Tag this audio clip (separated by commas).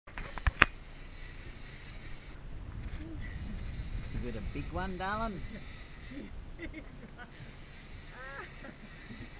Speech, Vehicle